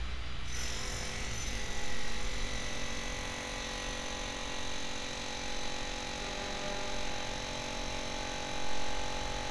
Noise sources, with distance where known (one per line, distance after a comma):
car horn, far